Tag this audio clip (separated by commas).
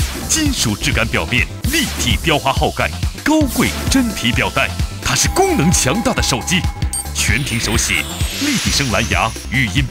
Speech, Music